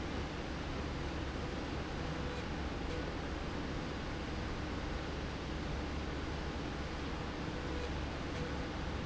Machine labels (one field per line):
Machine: slide rail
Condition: normal